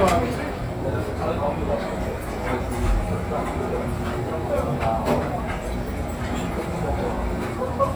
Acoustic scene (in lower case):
restaurant